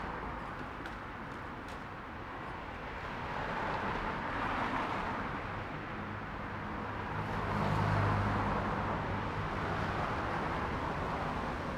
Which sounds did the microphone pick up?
motorcycle, car, motorcycle brakes, motorcycle engine accelerating, car wheels rolling, car engine accelerating